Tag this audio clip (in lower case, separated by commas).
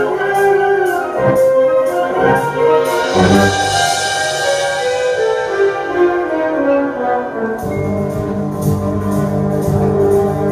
orchestra, music